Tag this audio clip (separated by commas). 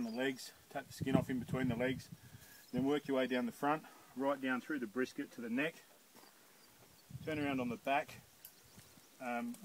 Speech